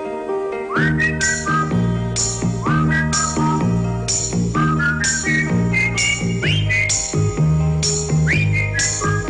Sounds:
Whistling

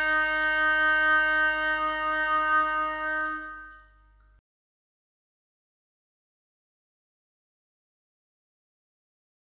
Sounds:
playing oboe

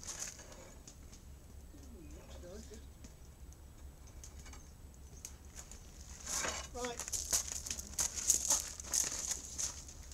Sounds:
Speech

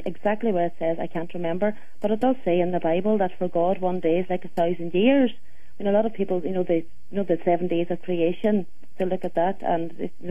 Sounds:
Speech

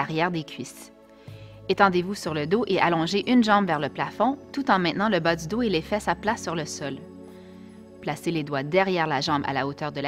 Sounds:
Speech, Music

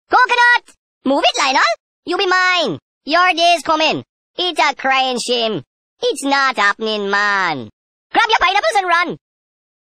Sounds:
Speech

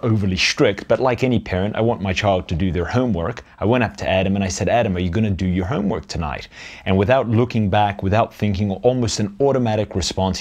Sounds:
Speech

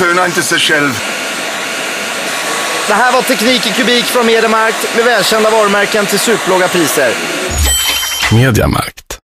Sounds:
Speech, Radio, Music

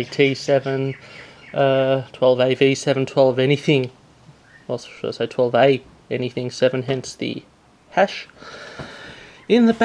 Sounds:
Speech

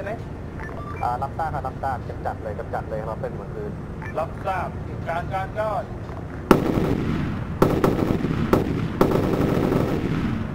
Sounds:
Speech

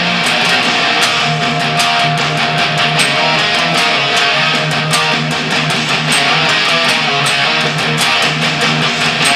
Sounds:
Guitar, Strum, Music, Plucked string instrument, Musical instrument

